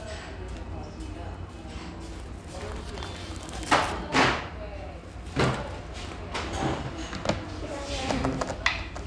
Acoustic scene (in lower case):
restaurant